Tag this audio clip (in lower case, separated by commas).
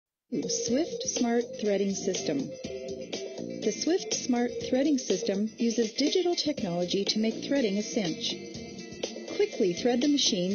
speech, music